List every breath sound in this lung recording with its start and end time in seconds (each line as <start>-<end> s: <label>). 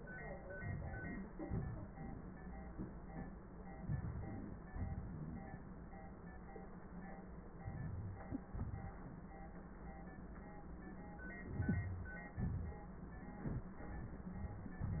0.52-1.32 s: inhalation
1.32-1.96 s: exhalation
3.81-4.71 s: inhalation
4.72-5.50 s: exhalation
7.61-8.27 s: inhalation
7.61-8.27 s: crackles
8.29-8.97 s: exhalation
11.35-12.34 s: inhalation
12.33-12.87 s: exhalation